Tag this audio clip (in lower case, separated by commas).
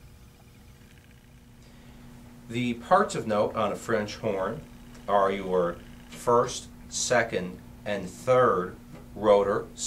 speech